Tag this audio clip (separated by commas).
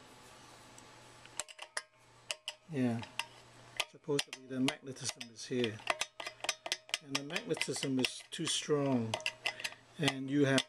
inside a small room, Speech